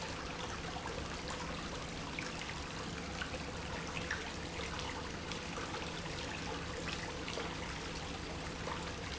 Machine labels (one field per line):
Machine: pump